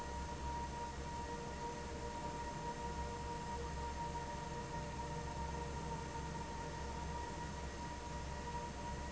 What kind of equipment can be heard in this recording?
fan